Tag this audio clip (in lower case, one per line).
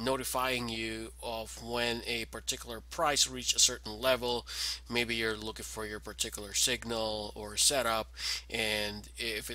speech